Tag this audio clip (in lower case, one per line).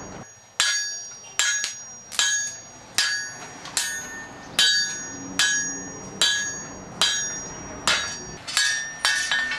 tools